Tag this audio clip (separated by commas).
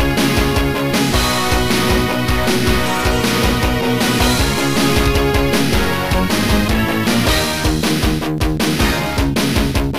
Music, Blues